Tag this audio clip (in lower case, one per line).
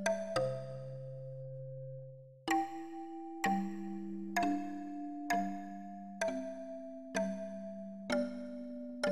music